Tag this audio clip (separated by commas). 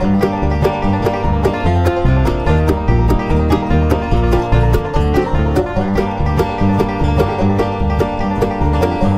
Banjo, Music